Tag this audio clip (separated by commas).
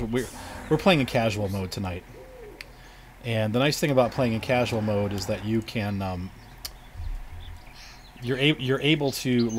outside, rural or natural, Speech